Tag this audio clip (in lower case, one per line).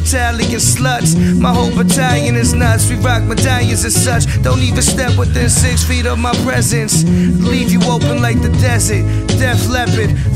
music